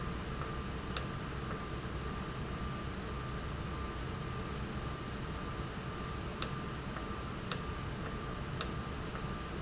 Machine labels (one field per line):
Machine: valve